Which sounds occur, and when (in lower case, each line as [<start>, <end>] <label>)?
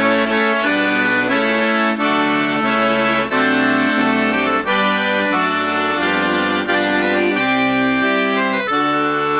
[0.01, 9.35] music